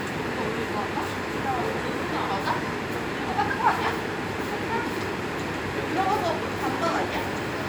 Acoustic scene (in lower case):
subway station